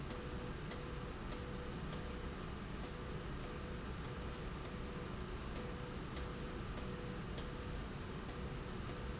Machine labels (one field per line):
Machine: slide rail